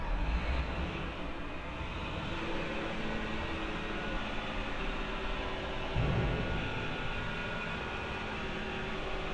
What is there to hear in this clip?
engine of unclear size